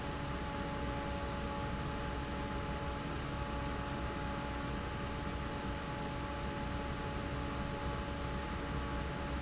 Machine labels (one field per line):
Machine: fan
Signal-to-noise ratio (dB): -6 dB